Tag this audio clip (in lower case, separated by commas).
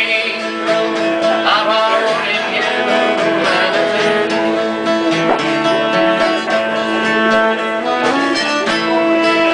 musical instrument, guitar, strum, plucked string instrument, music, acoustic guitar